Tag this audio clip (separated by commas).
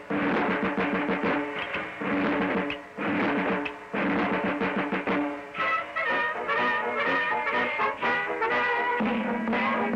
Music